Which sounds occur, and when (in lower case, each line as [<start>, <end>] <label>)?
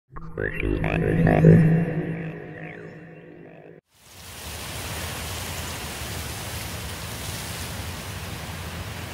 [0.04, 3.76] croak
[3.80, 9.13] wind